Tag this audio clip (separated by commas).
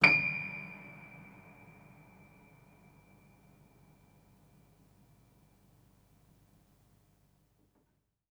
Piano, Keyboard (musical), Musical instrument, Music